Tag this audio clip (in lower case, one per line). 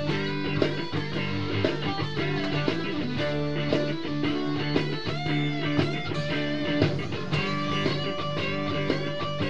musical instrument
electric guitar
music
guitar
plucked string instrument